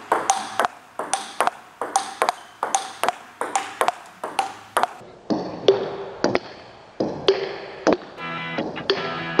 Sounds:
playing table tennis

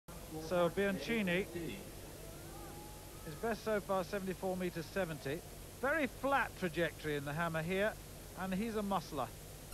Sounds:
speech

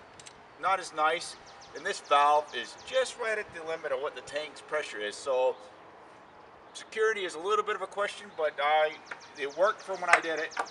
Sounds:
speech

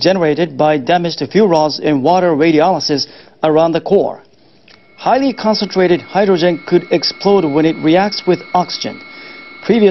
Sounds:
speech

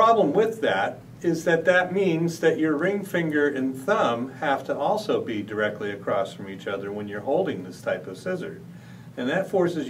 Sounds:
speech

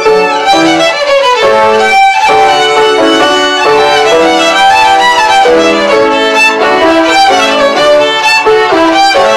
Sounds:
music
musical instrument
violin

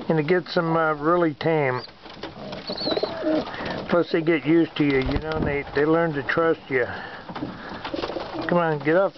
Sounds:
pigeon
bird
speech

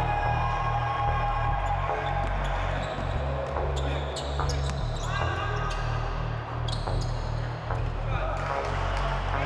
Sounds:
speech
basketball bounce
music

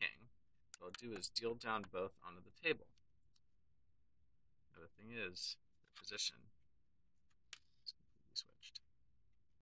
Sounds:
speech

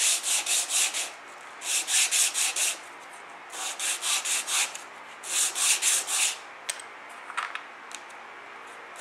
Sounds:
rub
wood

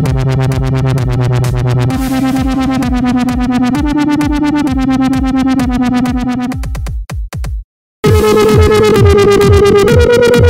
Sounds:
electronic music
techno
music
dubstep

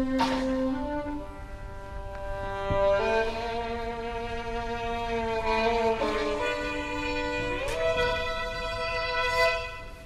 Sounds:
musical instrument
fiddle
music

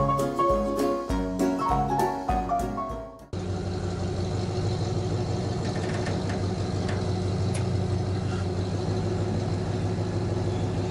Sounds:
vehicle
music

